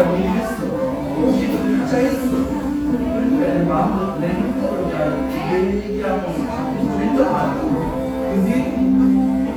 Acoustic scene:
cafe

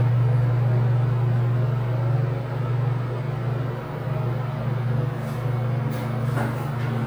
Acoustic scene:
elevator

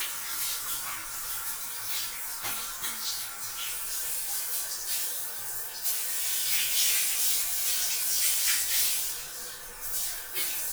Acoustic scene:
restroom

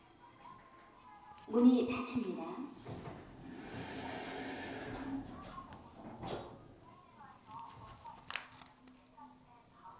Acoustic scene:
elevator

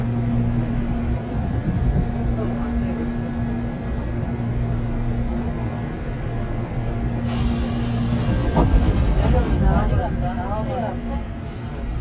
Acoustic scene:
subway train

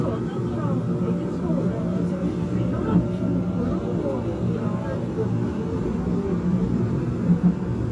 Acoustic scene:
subway train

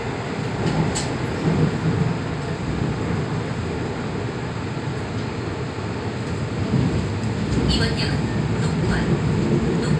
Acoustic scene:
subway train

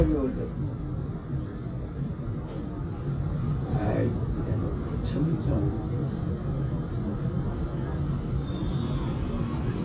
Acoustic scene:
subway train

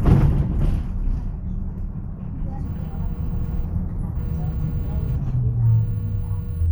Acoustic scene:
bus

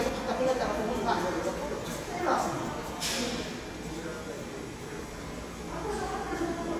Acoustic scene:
subway station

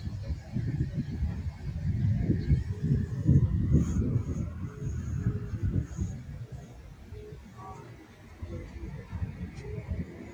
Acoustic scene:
park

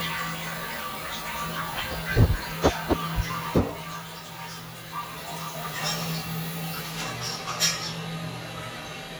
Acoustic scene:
restroom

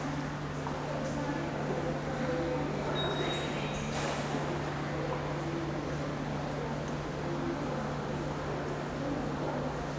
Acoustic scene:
subway station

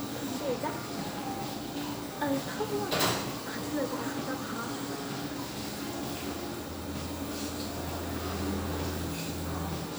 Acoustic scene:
restaurant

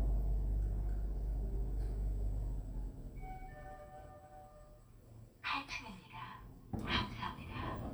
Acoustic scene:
elevator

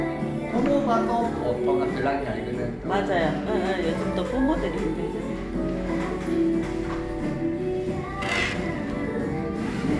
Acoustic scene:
cafe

